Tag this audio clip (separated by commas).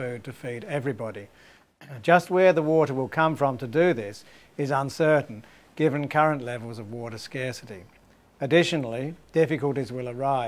Speech